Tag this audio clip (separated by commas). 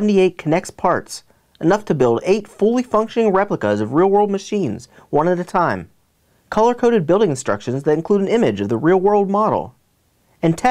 Speech